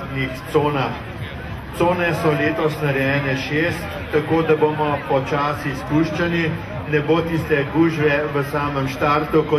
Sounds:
outside, rural or natural, crowd, speech

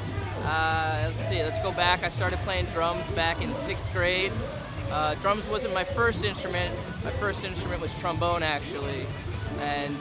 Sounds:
music, speech

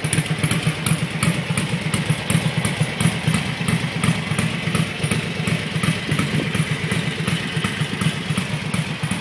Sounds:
vehicle, heavy engine (low frequency)

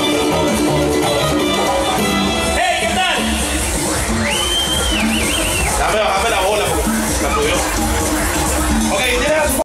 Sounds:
speech, music

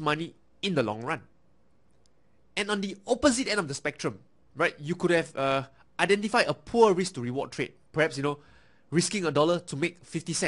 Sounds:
speech

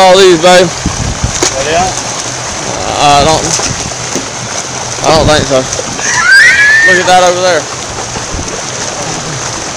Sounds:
speech, outside, rural or natural, sloshing water, slosh

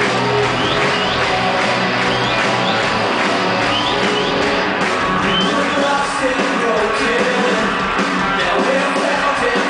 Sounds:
music

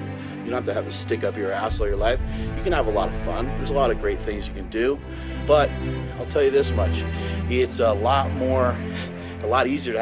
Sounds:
music, speech

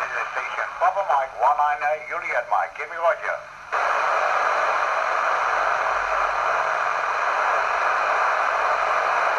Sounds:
speech, radio

